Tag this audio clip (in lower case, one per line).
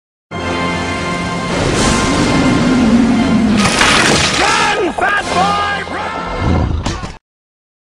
speech
music
run